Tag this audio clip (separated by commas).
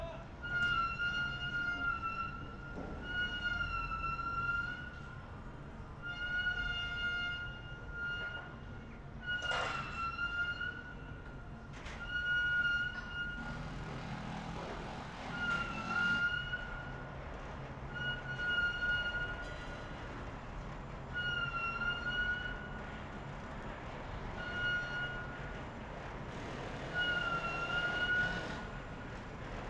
Drill, Power tool, Tools